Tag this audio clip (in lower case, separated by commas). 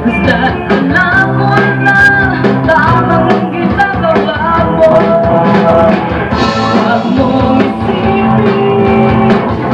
music, female singing